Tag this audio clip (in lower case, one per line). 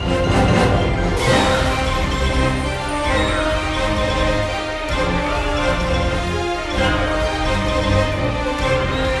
theme music
music